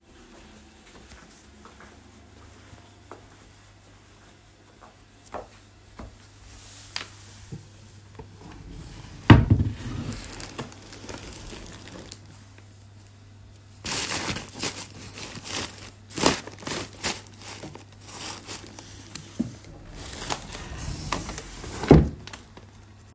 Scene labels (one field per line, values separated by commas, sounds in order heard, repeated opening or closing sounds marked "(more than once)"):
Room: bedroom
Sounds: footsteps, wardrobe or drawer (more than once)